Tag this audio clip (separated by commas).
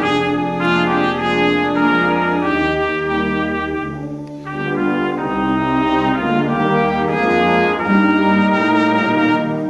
playing cornet